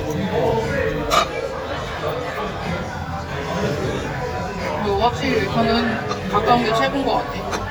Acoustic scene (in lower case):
crowded indoor space